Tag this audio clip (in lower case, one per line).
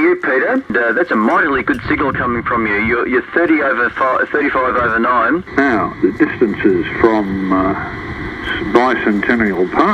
radio